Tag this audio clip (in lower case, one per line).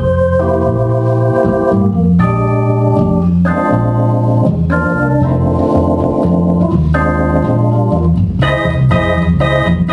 organ
hammond organ
playing hammond organ